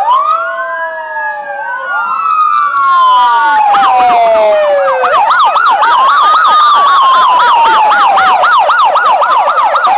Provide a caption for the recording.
An emergency siren warbles while other sirens blare